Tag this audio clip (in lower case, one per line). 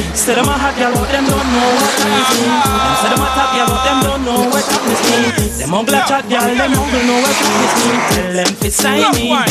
afrobeat
reggae
music
ska